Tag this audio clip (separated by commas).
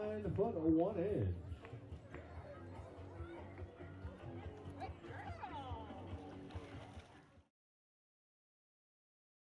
Music, Speech